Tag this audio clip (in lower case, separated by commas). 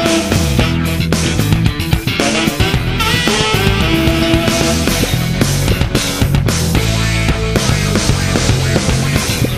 music, video game music